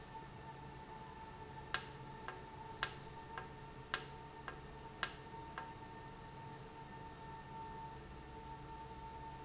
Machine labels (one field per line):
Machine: valve